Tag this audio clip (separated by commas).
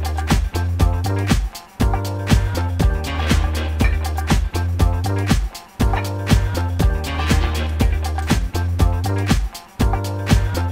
Music